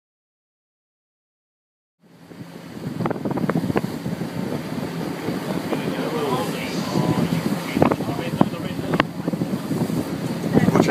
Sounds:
volcano explosion

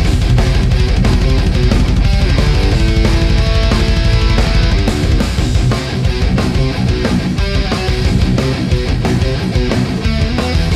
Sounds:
music, distortion

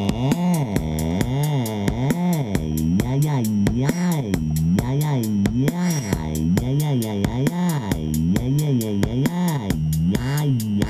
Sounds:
music, synthesizer

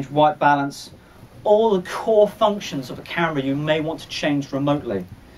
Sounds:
speech

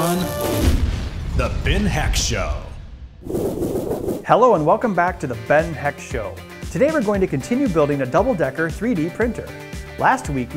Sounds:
speech, music

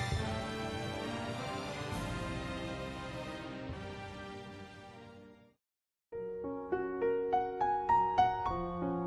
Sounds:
keyboard (musical), piano

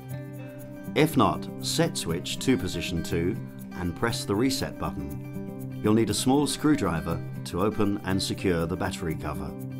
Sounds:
music, speech

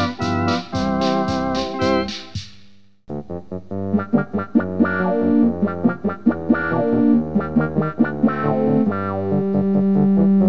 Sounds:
hammond organ, playing hammond organ, organ

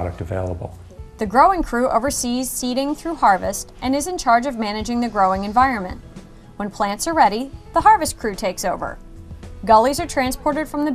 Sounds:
speech, music, inside a large room or hall

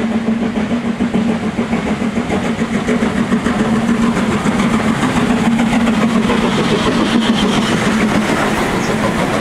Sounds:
train whistling

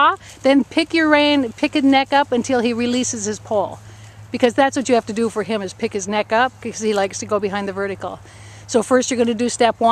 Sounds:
speech

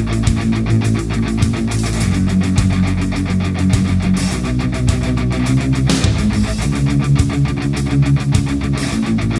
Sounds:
music

